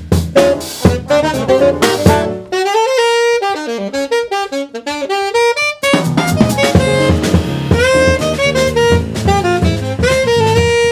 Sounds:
musical instrument
playing saxophone
guitar
saxophone
bowed string instrument
music
plucked string instrument
jazz

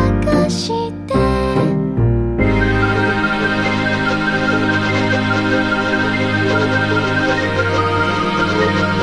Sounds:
music

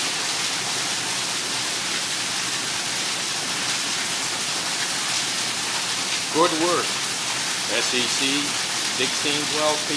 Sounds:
water tap
water

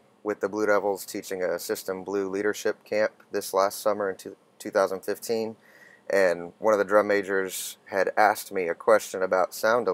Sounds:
speech

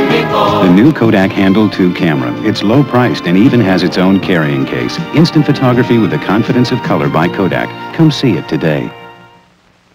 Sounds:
music
speech

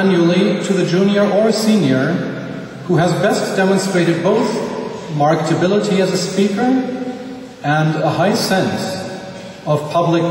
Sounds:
speech
man speaking
monologue

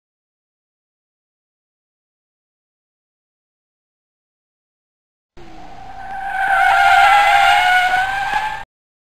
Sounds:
car
silence

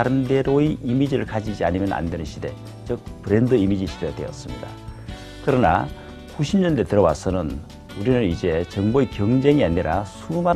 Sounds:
striking pool

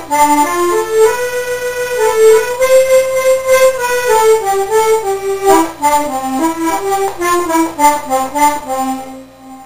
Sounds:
music

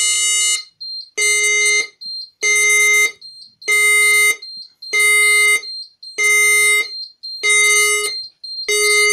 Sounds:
fire alarm
speech
alarm

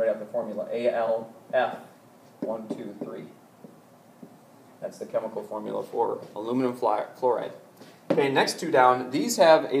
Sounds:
writing
speech

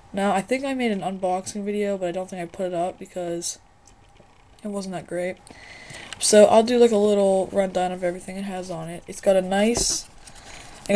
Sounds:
speech

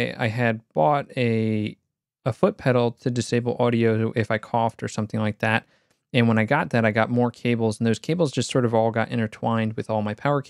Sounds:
speech

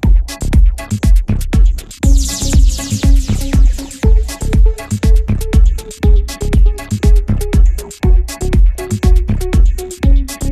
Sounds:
soundtrack music
music

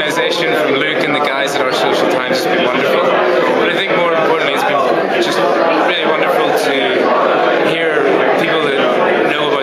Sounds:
speech

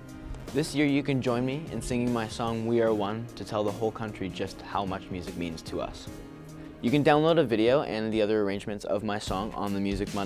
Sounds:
music
speech

